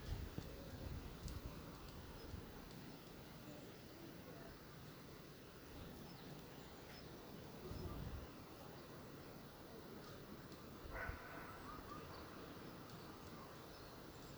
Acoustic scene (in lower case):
park